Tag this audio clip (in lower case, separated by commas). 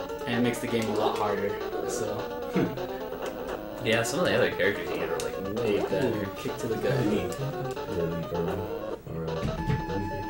music, speech